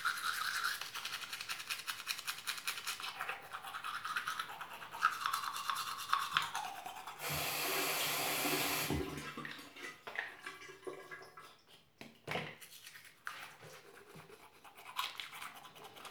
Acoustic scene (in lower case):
restroom